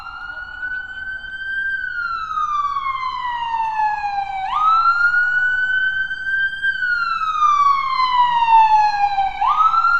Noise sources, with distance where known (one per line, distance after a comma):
siren